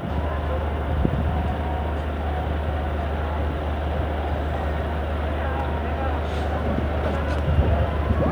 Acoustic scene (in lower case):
street